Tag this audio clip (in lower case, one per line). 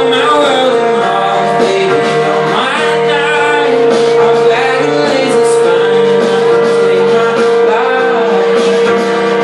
music
pop music